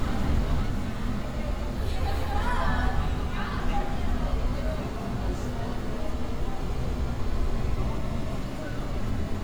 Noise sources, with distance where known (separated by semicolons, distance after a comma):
engine of unclear size; person or small group talking; person or small group shouting